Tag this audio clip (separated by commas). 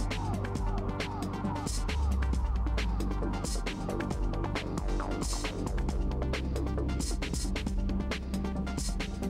Music